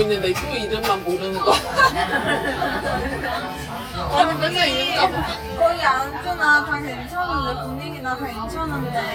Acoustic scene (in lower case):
crowded indoor space